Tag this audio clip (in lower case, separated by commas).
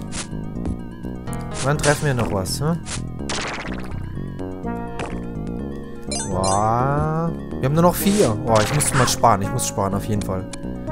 speech, music